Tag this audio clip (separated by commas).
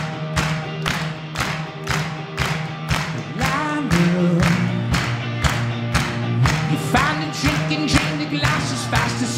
Music